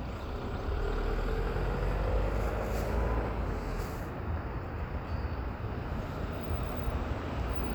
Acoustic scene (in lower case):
street